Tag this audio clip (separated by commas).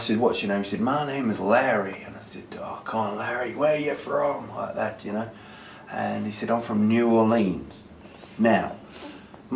Speech